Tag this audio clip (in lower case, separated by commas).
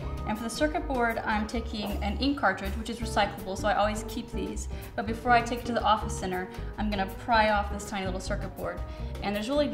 music, speech